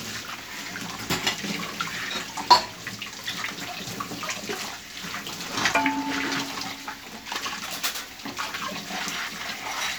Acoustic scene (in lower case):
kitchen